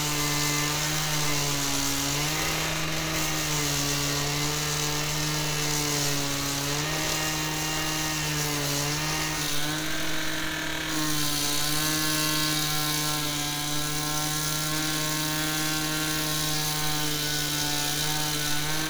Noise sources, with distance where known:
unidentified powered saw, near

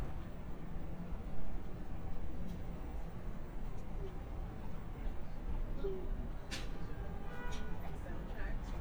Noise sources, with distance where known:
car horn; person or small group talking, near

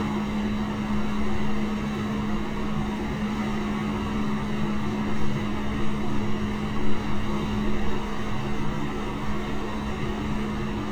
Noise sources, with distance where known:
engine of unclear size, near

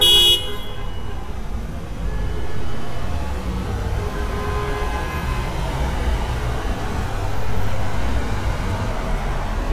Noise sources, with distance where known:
engine of unclear size, near; car horn, near

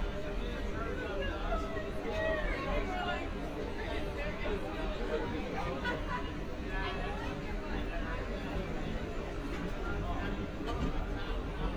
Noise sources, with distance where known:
person or small group talking, near

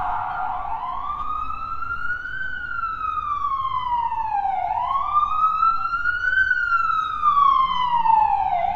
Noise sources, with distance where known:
siren, near

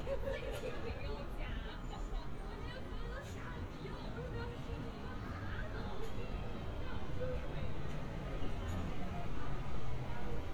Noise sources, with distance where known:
person or small group talking, far

